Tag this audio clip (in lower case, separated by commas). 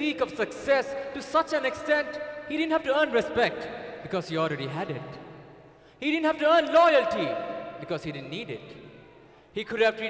speech, narration, man speaking